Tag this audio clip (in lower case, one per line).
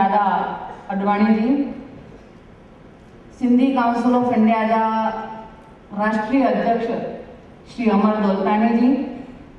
monologue
woman speaking
speech